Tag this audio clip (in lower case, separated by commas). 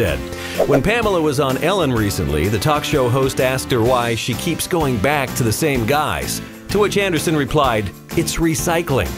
music, speech